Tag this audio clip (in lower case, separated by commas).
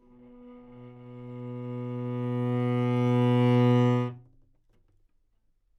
music, bowed string instrument, musical instrument